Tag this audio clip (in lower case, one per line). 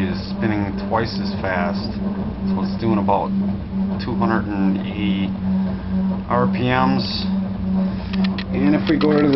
speech